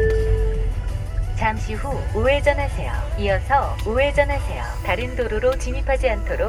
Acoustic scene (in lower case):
car